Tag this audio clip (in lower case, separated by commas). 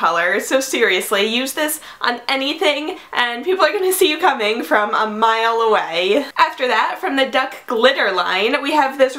speech